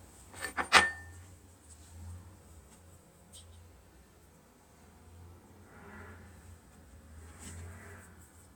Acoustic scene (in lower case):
kitchen